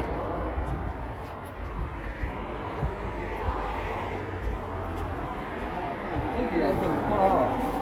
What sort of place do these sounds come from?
residential area